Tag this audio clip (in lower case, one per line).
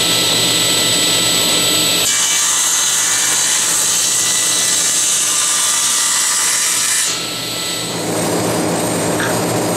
tools